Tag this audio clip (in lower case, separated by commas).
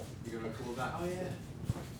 human voice, speech